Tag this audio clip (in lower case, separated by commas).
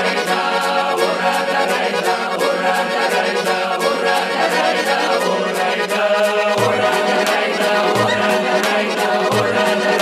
music